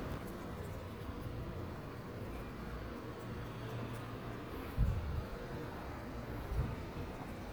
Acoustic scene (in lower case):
residential area